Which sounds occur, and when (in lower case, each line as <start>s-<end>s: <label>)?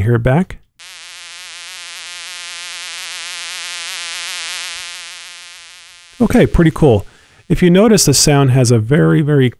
0.7s-7.5s: mosquito
7.0s-7.4s: breathing